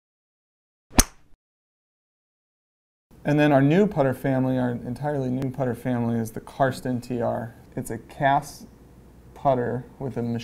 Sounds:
Speech

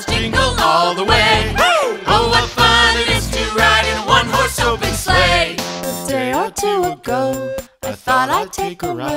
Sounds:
Jingle (music), Music

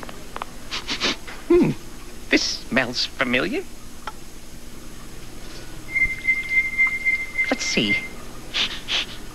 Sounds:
Speech

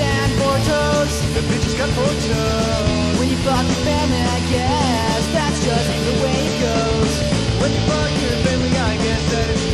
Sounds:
Music

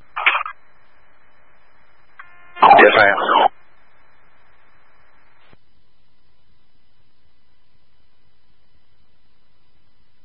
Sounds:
police radio chatter

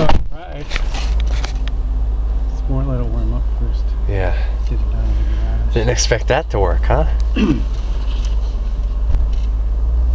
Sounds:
Speech

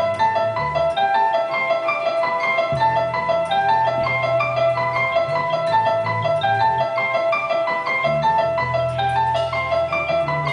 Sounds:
Music

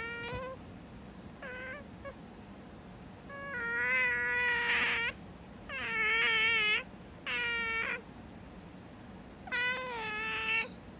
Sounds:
otter growling

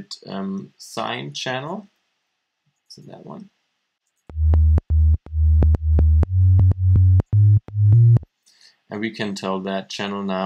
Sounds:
Music, Speech

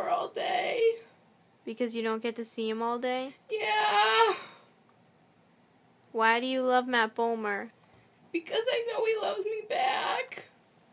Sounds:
Speech

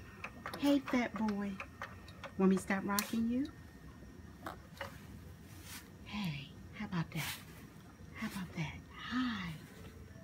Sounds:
Speech

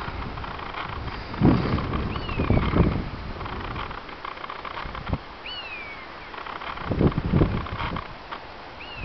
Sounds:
bird squawking

